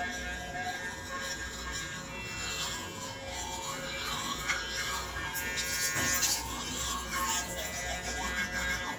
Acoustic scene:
restroom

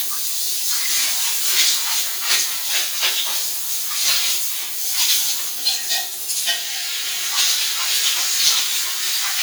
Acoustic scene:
restroom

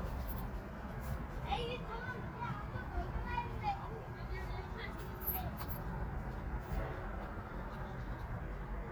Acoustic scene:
park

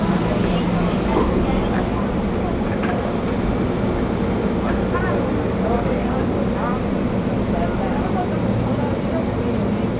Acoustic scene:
subway train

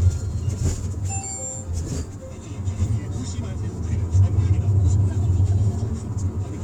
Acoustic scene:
car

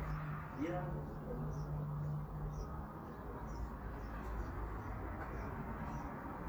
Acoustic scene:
residential area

